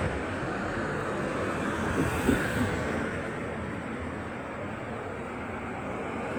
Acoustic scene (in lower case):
street